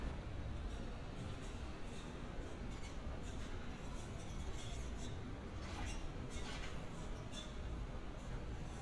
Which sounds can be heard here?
background noise